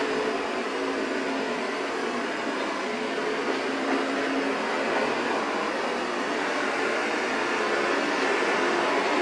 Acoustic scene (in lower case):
street